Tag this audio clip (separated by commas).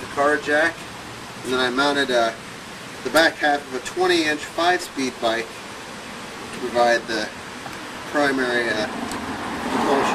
Vehicle, Speech